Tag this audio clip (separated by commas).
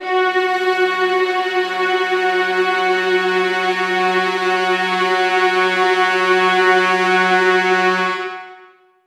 Music, Musical instrument